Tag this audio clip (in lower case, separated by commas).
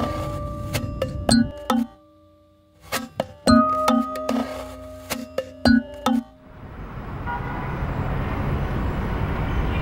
vehicle, music